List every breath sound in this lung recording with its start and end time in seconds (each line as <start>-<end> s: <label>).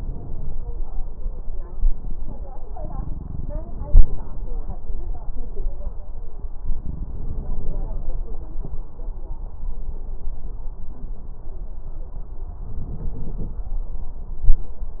6.75-8.09 s: inhalation
12.65-13.63 s: inhalation